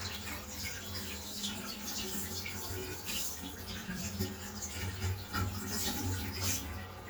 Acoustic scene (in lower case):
restroom